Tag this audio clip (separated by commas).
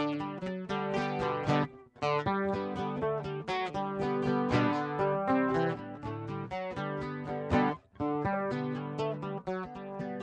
Music, Plucked string instrument, Guitar, Acoustic guitar, Strum, Musical instrument